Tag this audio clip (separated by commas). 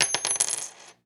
Domestic sounds, Coin (dropping)